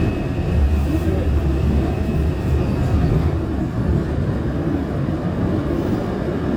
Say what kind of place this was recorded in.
subway train